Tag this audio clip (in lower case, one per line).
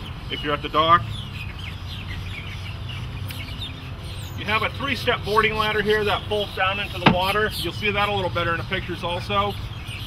speech